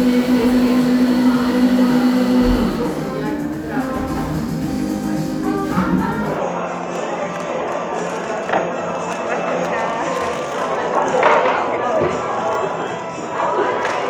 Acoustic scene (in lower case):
cafe